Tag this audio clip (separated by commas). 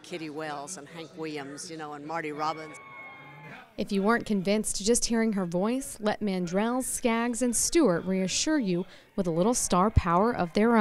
Speech